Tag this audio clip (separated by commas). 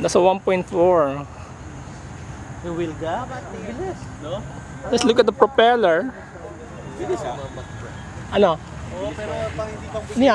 Speech